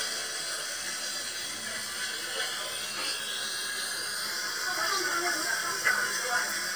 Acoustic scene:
restaurant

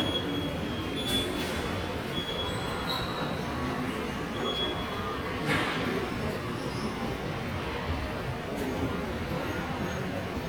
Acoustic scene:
subway station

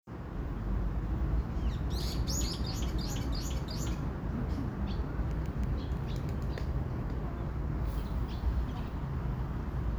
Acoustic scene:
park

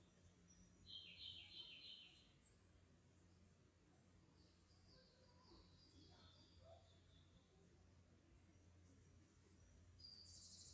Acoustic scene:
park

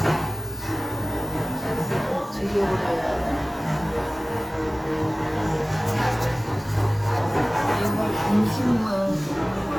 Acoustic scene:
cafe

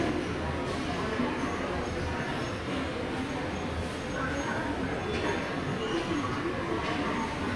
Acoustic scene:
subway station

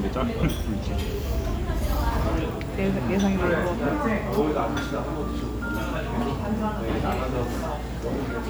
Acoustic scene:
restaurant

